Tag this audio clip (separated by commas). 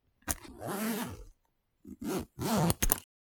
Zipper (clothing), Domestic sounds